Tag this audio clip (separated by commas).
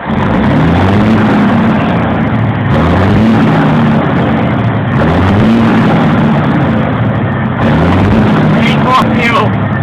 Speech